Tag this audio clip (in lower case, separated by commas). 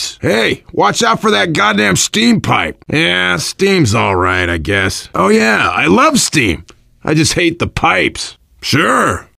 speech